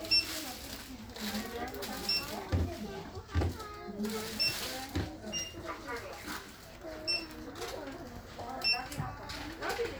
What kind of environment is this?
crowded indoor space